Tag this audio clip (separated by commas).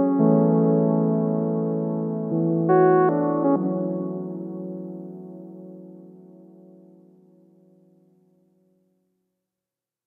Music